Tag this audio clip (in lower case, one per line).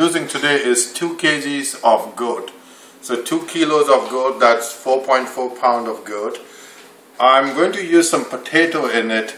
speech